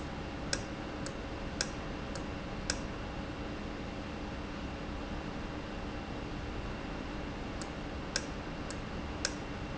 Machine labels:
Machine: valve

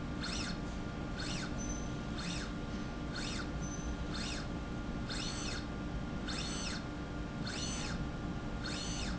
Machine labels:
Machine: slide rail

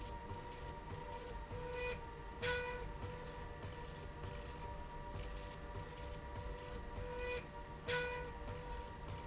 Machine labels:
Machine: slide rail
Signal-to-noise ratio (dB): 6 dB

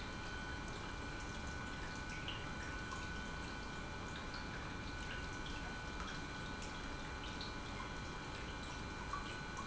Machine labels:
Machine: pump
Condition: normal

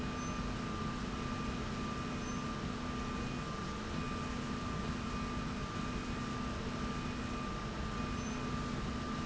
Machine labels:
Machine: slide rail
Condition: normal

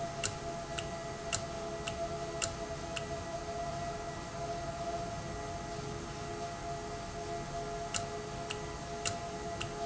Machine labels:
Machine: valve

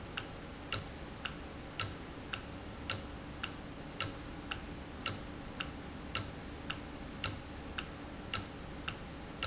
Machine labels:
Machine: valve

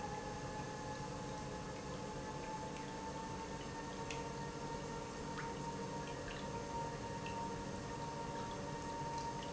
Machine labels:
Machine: pump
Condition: normal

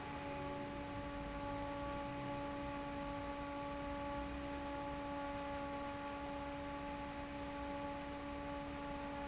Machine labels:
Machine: fan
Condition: normal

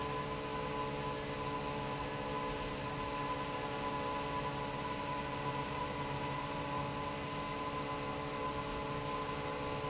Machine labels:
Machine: fan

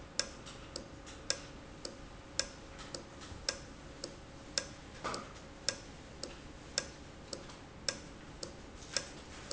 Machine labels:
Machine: valve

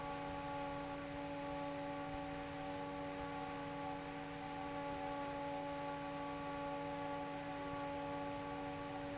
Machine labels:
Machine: fan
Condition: normal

